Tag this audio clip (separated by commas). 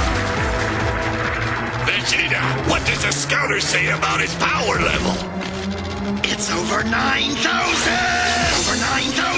Speech, Computer keyboard, Music, Typing